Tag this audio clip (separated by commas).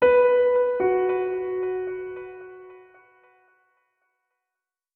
Music, Musical instrument, Keyboard (musical), Piano